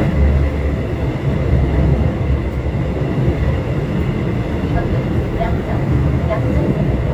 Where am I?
on a subway train